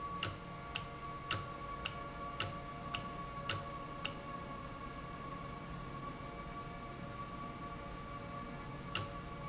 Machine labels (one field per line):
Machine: valve